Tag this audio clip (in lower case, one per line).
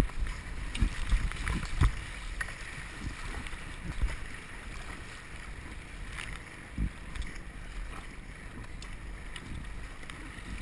vehicle
water vehicle
canoe